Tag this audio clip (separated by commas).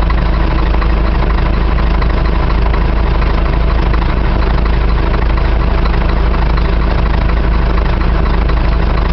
Vehicle, Lawn mower